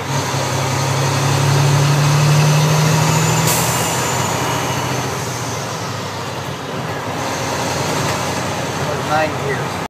A vehicle moves and a pneumatic sound, like a bus door opening